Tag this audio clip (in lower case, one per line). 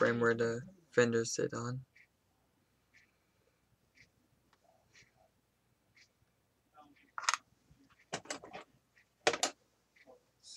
speech